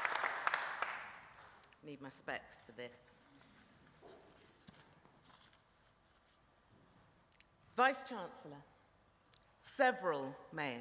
Tiny clapping, different female voices